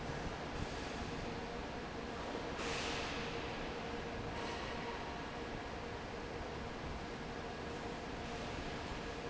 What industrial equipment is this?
fan